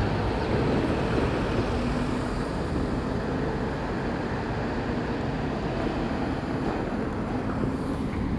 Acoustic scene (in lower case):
street